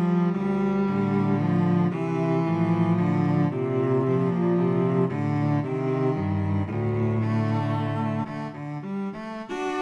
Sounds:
cello, musical instrument, music

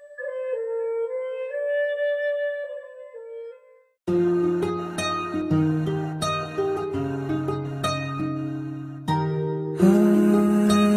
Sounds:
music, flute

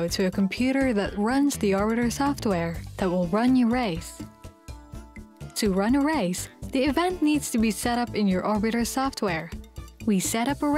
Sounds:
music, speech

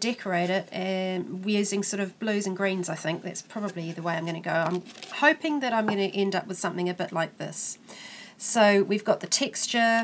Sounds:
speech

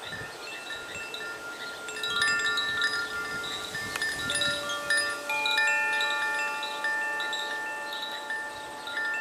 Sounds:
wind chime, chime

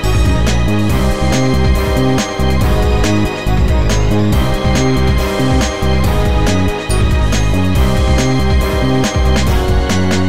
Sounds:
music

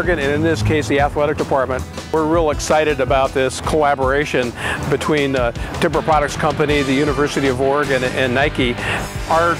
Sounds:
speech, vehicle, music

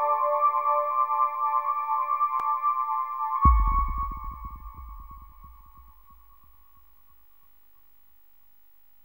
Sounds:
music, trance music, electronic music

